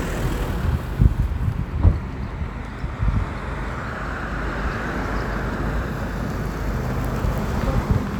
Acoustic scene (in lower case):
street